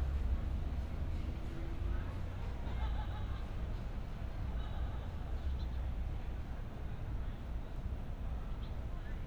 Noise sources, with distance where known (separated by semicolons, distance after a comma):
unidentified human voice, far